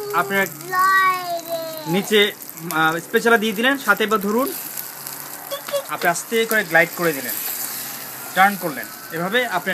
A baby speaks, an adult male speaks, and sizzling is heard